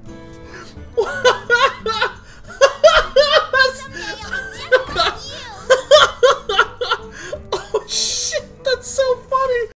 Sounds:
music, speech

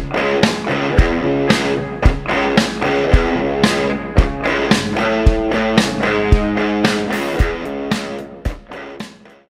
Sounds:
music

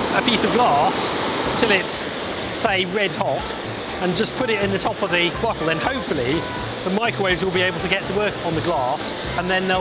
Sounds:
speech

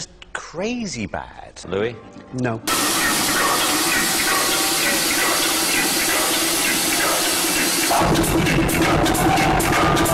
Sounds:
speech, music, electronic music

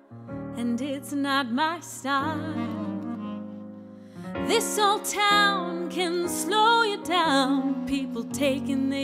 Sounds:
music

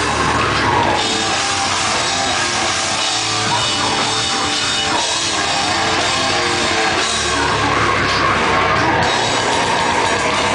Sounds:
music, rock music, heavy metal

